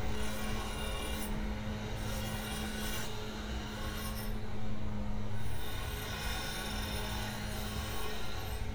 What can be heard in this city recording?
rock drill